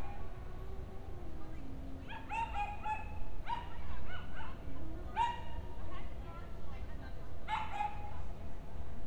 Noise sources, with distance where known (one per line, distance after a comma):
person or small group talking, far
dog barking or whining, near